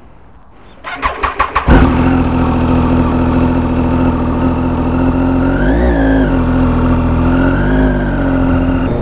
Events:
[0.01, 0.85] noise
[0.80, 9.01] motorcycle

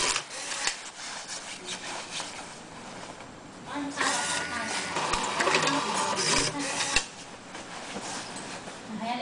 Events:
[0.00, 9.21] printer
[3.69, 4.75] female speech

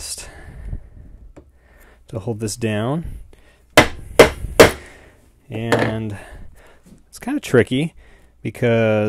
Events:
[0.00, 0.54] whispering
[0.00, 9.05] mechanisms
[0.49, 1.29] breathing
[1.30, 1.42] generic impact sounds
[1.47, 1.99] breathing
[2.06, 3.25] male speech
[2.91, 5.23] breathing
[3.75, 3.97] hammer
[4.16, 4.34] hammer
[4.59, 4.97] hammer
[5.47, 6.12] male speech
[5.67, 5.96] generic impact sounds
[6.09, 6.81] breathing
[6.81, 7.02] generic impact sounds
[7.11, 7.92] male speech
[7.93, 8.39] breathing
[8.42, 9.05] male speech

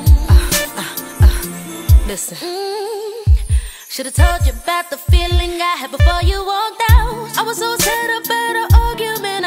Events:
[0.00, 9.45] music
[1.78, 2.30] female speech
[3.26, 3.88] breathing
[3.89, 9.45] female singing
[5.95, 6.44] heart sounds

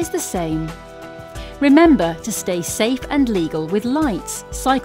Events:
[0.00, 0.73] woman speaking
[0.00, 4.84] music
[1.34, 1.62] breathing
[1.62, 4.84] woman speaking

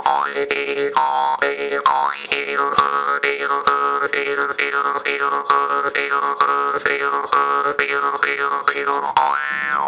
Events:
[0.00, 9.85] music

